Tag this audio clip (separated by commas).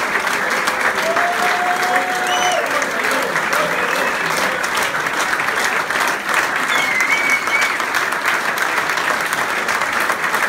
people clapping